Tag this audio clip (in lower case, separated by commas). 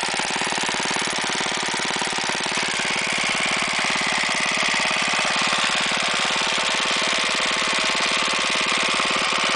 engine